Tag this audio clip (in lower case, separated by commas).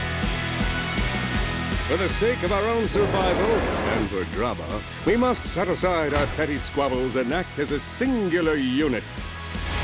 speech, music